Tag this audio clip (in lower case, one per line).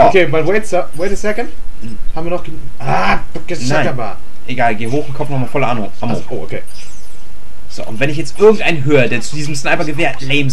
speech